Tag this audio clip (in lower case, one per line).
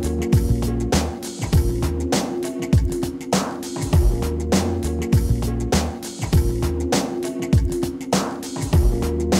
music